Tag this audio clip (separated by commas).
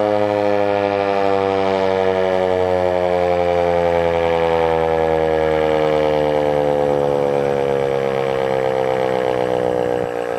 Siren, Civil defense siren